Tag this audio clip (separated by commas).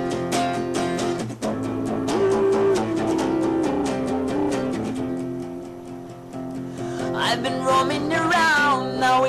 Music